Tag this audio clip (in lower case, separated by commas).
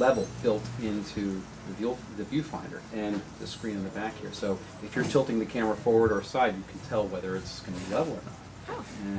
speech